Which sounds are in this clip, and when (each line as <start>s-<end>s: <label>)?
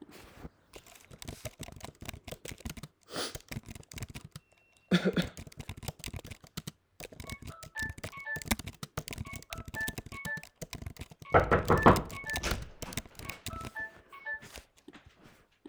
1.0s-4.5s: keyboard typing
5.3s-14.3s: keyboard typing
7.3s-14.7s: phone ringing
12.3s-13.3s: door